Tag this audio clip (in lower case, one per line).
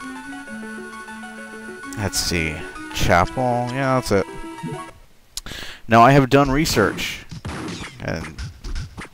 speech